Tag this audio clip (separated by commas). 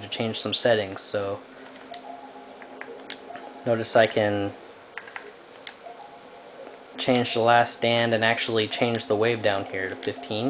Speech